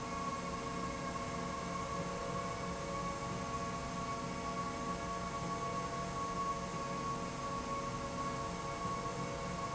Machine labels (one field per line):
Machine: slide rail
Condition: normal